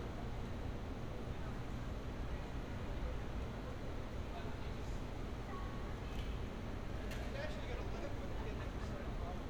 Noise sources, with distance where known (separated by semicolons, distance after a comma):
person or small group talking, far